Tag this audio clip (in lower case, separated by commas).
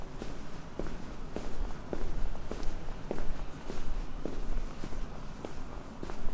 footsteps